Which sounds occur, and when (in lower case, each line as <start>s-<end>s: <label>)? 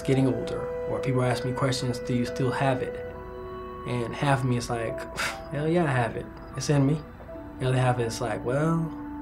0.0s-0.7s: male speech
0.0s-9.2s: music
0.9s-2.9s: male speech
3.8s-5.1s: male speech
5.1s-5.4s: breathing
5.5s-6.2s: male speech
6.5s-7.0s: male speech
7.6s-8.9s: male speech